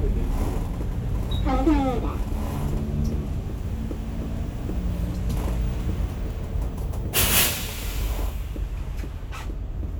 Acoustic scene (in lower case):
bus